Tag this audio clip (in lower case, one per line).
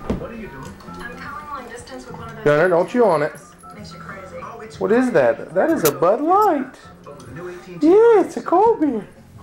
speech